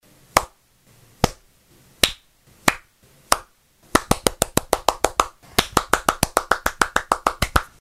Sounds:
Hands, Clapping

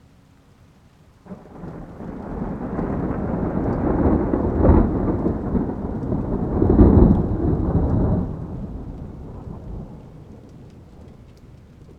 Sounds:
Thunder, Thunderstorm

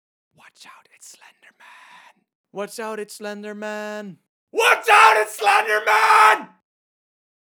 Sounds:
Human voice, Shout, Speech

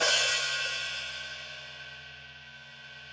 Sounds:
Cymbal, Musical instrument, Hi-hat, Percussion, Music

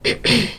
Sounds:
Cough, Respiratory sounds

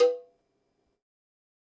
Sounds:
Bell, Cowbell

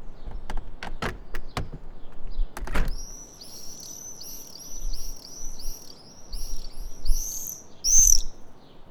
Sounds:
Animal, Wild animals, Bird

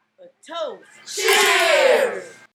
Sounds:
Human group actions, Cheering

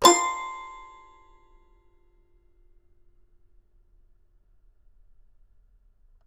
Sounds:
Music, Piano, Keyboard (musical), Musical instrument

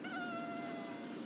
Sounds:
Animal, Wild animals, Insect

